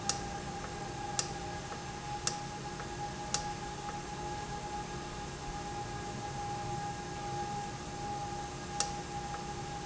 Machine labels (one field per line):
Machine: valve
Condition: normal